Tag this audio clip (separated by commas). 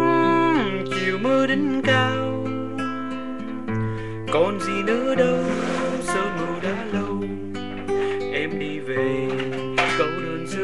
Music, Male singing